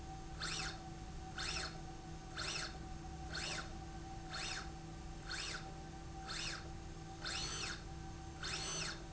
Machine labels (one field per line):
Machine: slide rail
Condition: normal